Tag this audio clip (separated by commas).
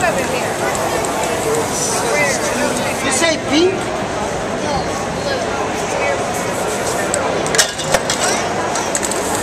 Spray, Speech